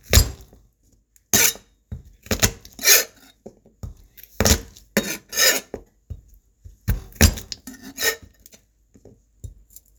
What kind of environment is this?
kitchen